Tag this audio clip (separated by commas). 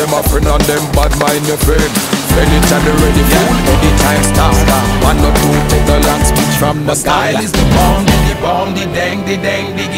Vehicle, Boat